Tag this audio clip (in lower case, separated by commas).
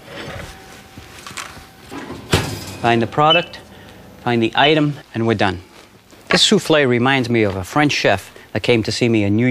speech, microwave oven